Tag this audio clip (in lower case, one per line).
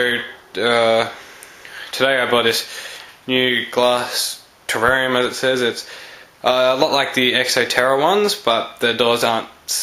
speech